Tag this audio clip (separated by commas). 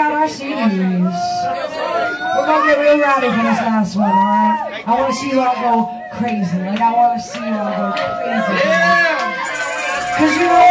Speech